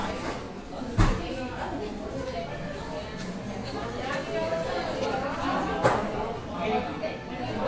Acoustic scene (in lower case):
cafe